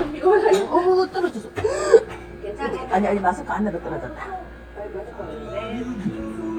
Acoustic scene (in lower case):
restaurant